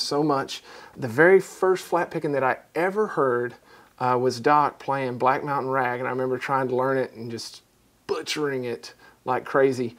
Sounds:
Speech

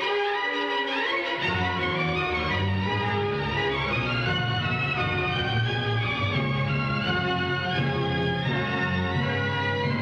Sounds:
Music

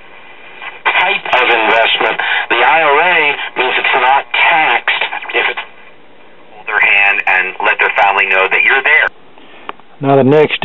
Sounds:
Speech, Radio

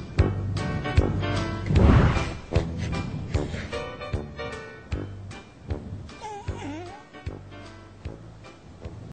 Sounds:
Music

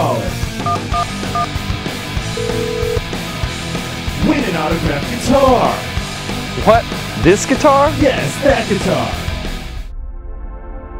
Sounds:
Speech, Music, Plucked string instrument, Musical instrument

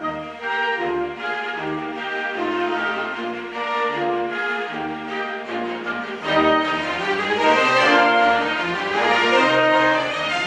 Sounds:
Orchestra, Violin, Musical instrument, Music

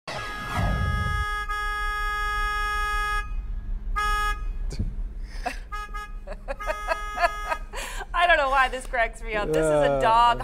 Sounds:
vehicle horn

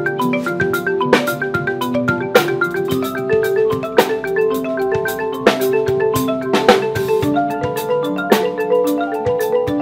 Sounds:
xylophone

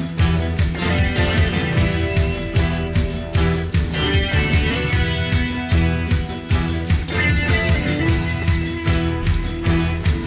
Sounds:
Music

